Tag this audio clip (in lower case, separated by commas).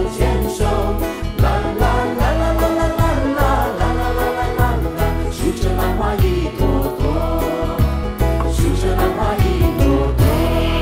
music, singing